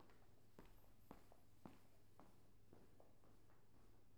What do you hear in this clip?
footsteps